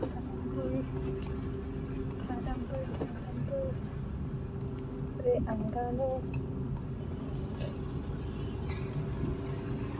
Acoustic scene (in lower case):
car